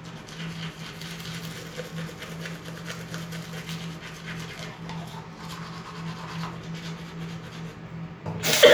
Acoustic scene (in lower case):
restroom